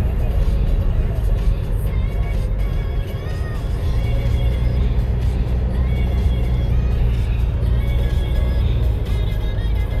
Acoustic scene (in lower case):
car